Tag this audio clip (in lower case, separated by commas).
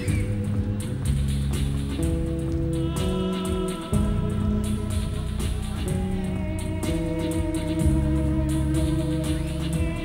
music